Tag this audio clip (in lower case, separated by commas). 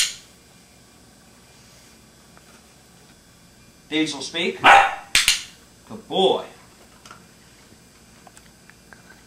animal, speech, domestic animals, dog